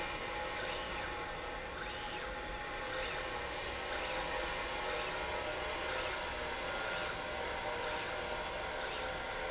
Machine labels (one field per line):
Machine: slide rail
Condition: normal